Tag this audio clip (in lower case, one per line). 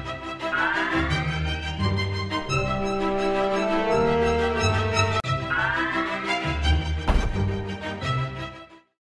music